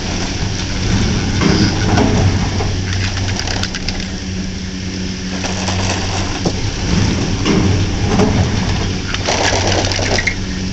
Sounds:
outside, rural or natural

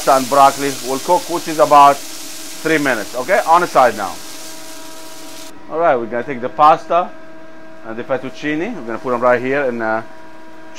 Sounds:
Speech

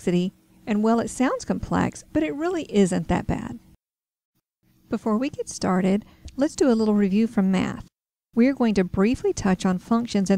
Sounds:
Speech

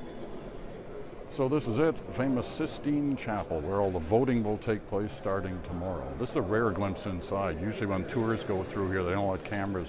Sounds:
Speech

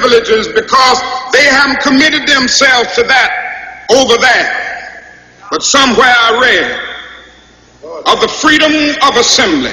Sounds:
Narration, Male speech, Speech

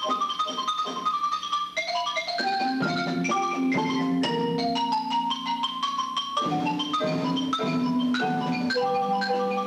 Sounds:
Percussion, Music, xylophone, Musical instrument

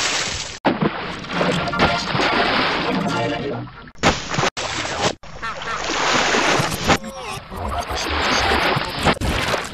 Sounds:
Gurgling, Music

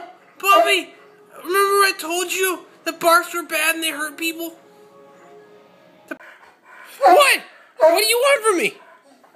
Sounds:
Whimper (dog), Music, Domestic animals, Dog, Speech, Animal

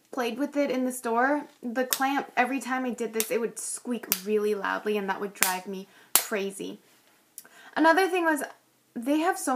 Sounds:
Speech, Tools

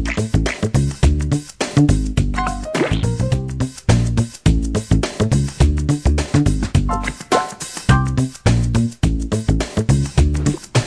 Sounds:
Video game music, Music

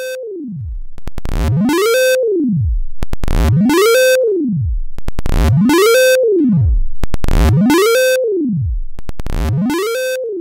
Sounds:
Effects unit, Synthesizer

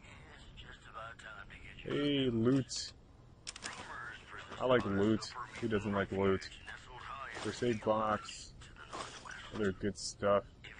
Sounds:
inside a small room, Speech

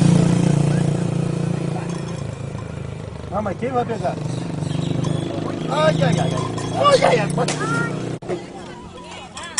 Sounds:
Speech

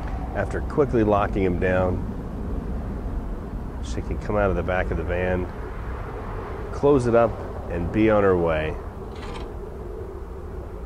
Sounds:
Speech

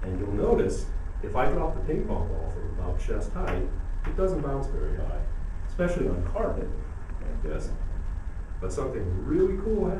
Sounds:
Speech

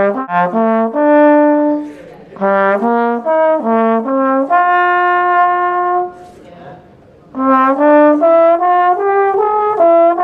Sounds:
Brass instrument, Trombone, playing trombone

